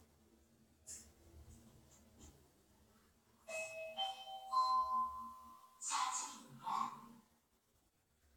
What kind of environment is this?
elevator